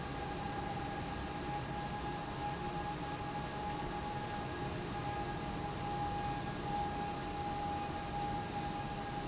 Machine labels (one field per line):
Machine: fan